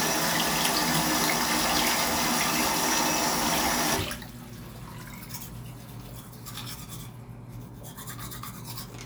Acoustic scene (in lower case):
restroom